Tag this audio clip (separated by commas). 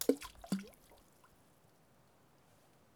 splatter, Liquid, Water